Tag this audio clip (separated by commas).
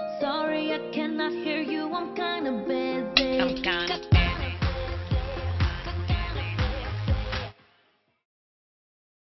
Music